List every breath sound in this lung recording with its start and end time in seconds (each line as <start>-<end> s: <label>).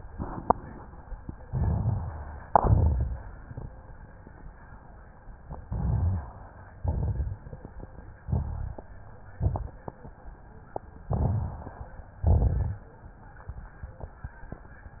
1.50-2.39 s: crackles
1.50-2.45 s: inhalation
2.49-3.44 s: exhalation
2.49-3.44 s: crackles
5.62-6.30 s: inhalation
5.62-6.30 s: rhonchi
6.77-7.46 s: exhalation
6.77-7.46 s: crackles
8.23-8.92 s: inhalation
8.23-8.92 s: rhonchi
9.43-9.83 s: exhalation
9.43-9.83 s: crackles
11.06-11.84 s: inhalation
11.06-11.84 s: crackles
12.20-12.83 s: exhalation
12.20-12.83 s: crackles